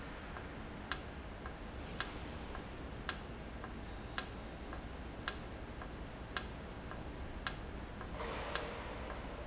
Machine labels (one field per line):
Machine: valve